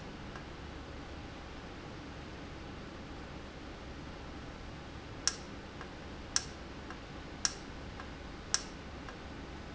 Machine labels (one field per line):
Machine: valve